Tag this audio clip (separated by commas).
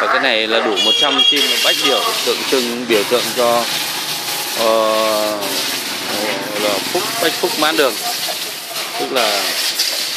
Speech